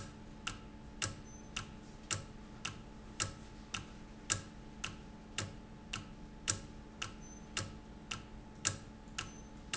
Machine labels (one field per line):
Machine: valve